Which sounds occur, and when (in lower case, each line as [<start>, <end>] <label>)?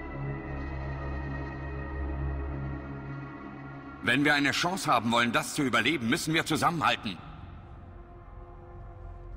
[0.00, 9.35] music
[4.02, 9.35] conversation